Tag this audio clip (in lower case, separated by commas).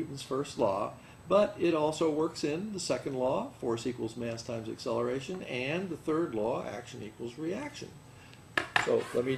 speech